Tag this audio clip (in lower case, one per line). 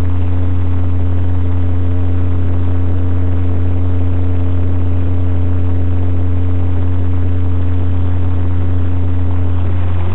vehicle